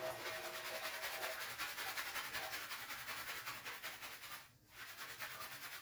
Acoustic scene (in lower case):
restroom